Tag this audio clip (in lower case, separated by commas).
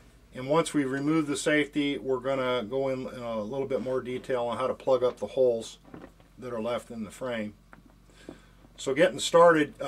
speech